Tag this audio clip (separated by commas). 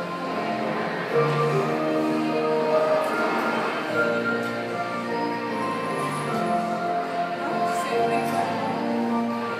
Music, fiddle, Musical instrument, Speech